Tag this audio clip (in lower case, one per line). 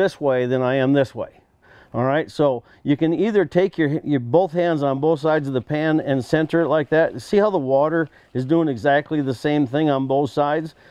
speech